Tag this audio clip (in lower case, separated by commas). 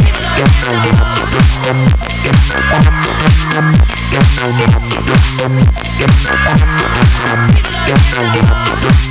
electronic dance music